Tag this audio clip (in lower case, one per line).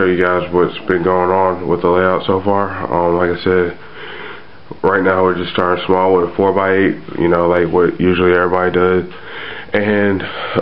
speech